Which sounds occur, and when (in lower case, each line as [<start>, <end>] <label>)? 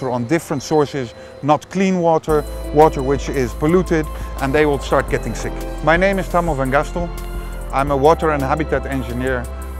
[0.00, 1.08] man speaking
[0.00, 9.75] music
[0.00, 9.75] wind
[1.13, 1.44] breathing
[1.41, 2.39] man speaking
[2.74, 3.48] man speaking
[3.59, 4.01] man speaking
[4.09, 4.34] breathing
[4.32, 5.47] man speaking
[5.84, 7.04] man speaking
[7.70, 9.42] man speaking